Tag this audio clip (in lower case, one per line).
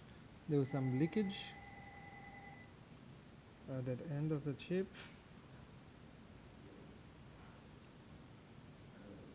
speech